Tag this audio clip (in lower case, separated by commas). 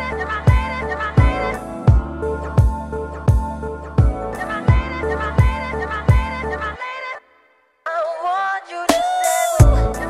music